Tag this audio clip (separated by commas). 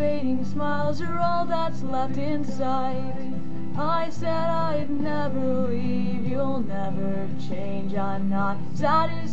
Music